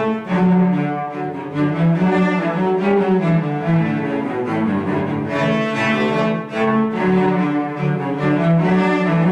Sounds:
Musical instrument, Cello, Music

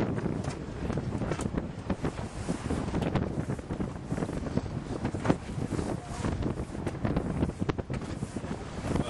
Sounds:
sailing

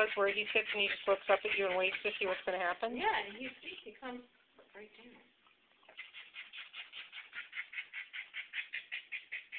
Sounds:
Speech

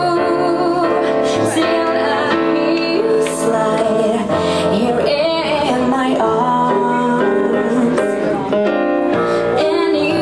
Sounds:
Music

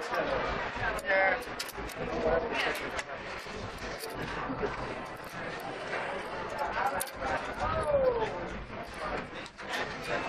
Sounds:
Speech

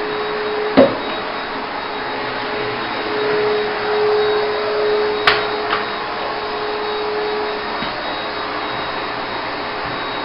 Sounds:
inside a small room

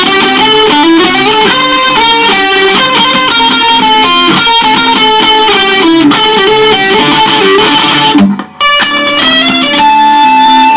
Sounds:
Musical instrument, Electric guitar, Bass guitar, Plucked string instrument, Music

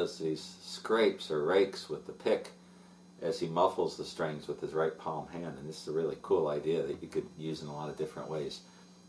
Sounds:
Speech

